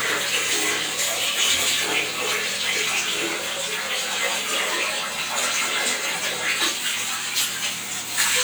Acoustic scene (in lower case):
restroom